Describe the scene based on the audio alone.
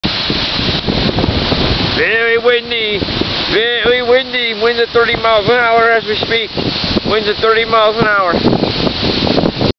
Wind is blowing hard and a man is speaking over the wind